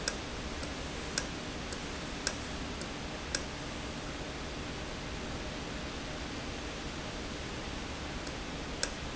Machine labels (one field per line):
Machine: valve